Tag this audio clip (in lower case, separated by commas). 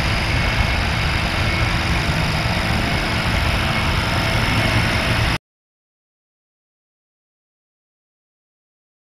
helicopter